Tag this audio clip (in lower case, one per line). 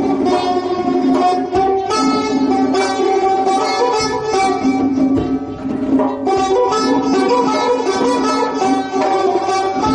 music